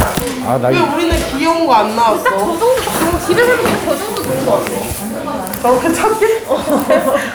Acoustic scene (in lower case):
crowded indoor space